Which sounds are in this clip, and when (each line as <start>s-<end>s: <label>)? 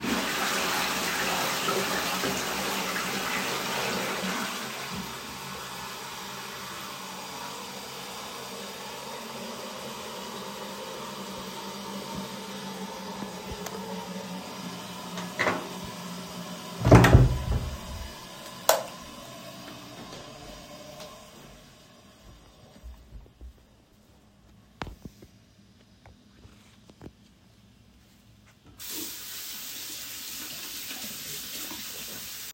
0.0s-23.7s: toilet flushing
15.2s-17.6s: door
18.6s-19.0s: light switch
19.6s-24.7s: footsteps
28.7s-32.5s: running water